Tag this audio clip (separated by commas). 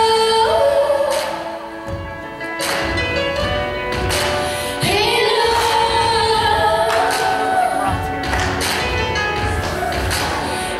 Singing, Music